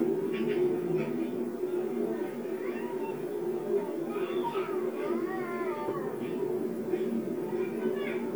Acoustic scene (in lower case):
park